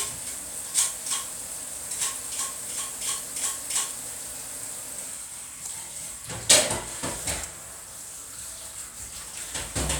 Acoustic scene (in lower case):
kitchen